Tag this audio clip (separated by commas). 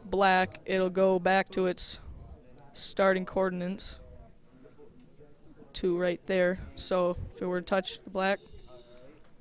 Speech